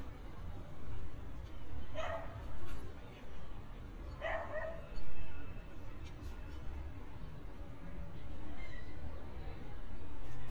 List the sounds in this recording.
dog barking or whining